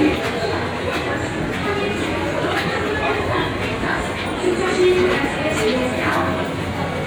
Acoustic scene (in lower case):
subway station